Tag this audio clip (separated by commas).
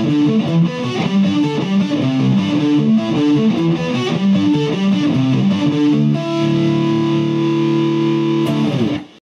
Guitar, Electric guitar, Plucked string instrument, Strum, Musical instrument, Music